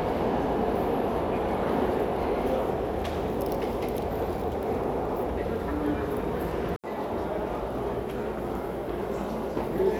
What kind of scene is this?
subway station